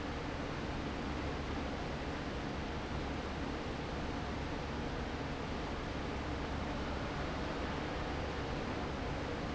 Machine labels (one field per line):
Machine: fan